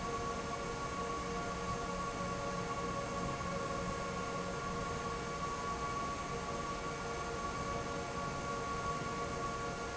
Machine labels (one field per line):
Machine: fan